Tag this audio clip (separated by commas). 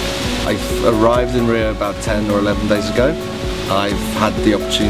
Music, Speech